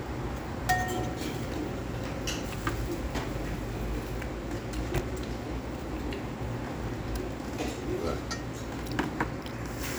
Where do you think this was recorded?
in a restaurant